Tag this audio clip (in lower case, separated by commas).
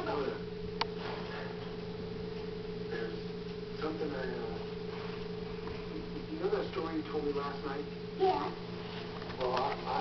speech